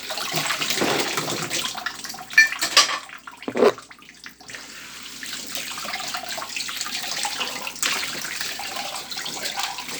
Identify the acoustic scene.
kitchen